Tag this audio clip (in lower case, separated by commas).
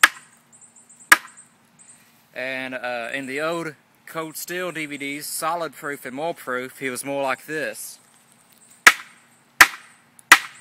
tools